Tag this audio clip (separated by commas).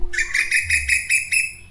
Bird, Animal, Wild animals